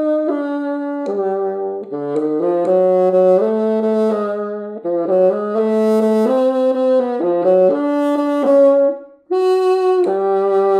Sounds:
playing bassoon

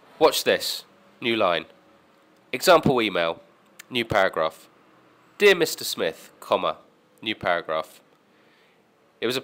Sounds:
monologue, Speech, Male speech

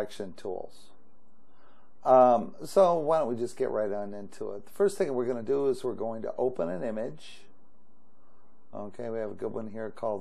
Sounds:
Speech

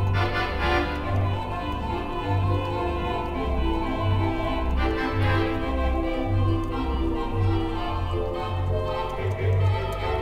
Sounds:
Music, Musical instrument

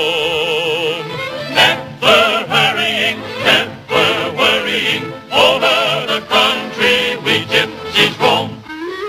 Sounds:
Music

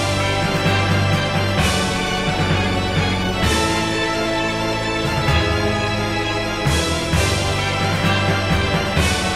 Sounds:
Scary music, Music

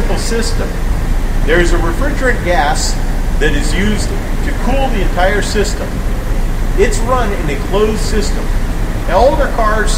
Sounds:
Speech, Air conditioning

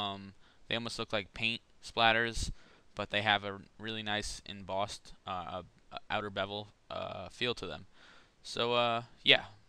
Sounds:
Speech

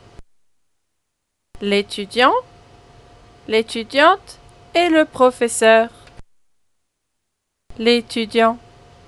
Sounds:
Speech

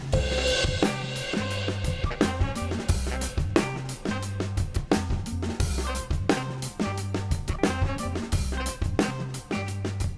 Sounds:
Drum kit, Musical instrument, Drum, Music, Cymbal

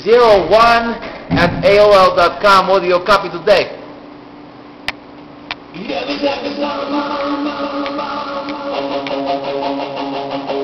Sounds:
Music, Speech

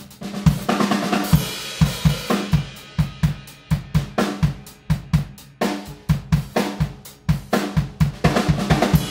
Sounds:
playing snare drum

